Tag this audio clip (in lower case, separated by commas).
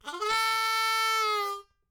musical instrument, harmonica, music